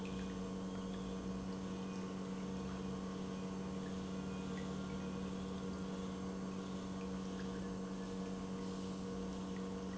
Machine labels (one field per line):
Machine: pump